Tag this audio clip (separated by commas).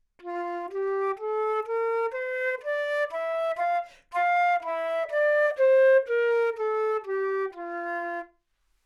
Music, Musical instrument, woodwind instrument